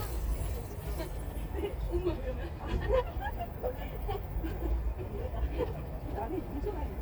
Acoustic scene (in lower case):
park